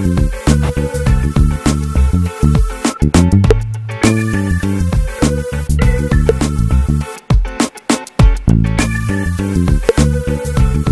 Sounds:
Music

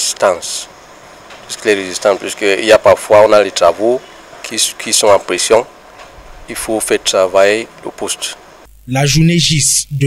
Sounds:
arc welding

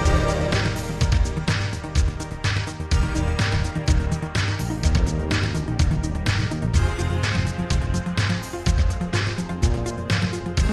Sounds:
Music

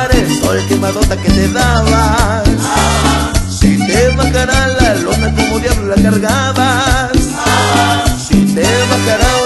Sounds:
Music

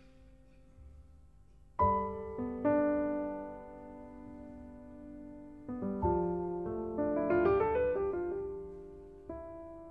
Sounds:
Music

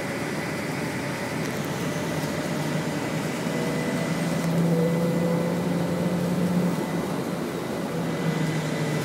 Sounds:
Vehicle, Bus, driving buses

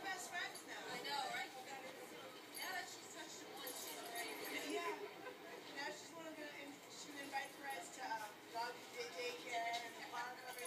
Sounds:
Speech

